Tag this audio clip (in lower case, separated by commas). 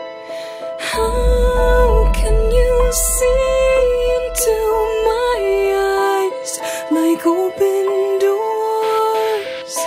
music, outside, rural or natural